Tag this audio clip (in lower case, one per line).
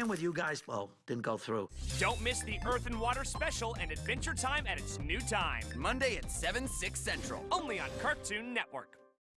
music
speech